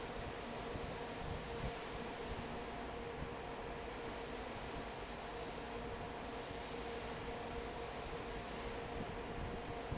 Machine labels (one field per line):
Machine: fan